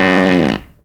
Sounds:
fart

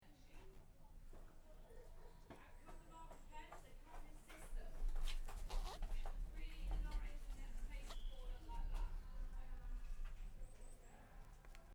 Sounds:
domestic sounds, zipper (clothing)

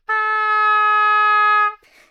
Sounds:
musical instrument, woodwind instrument, music

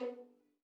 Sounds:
bowed string instrument, musical instrument, music

